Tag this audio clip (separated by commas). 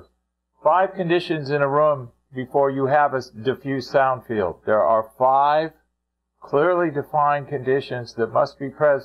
Speech